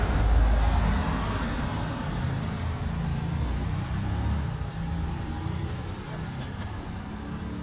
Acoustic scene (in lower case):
street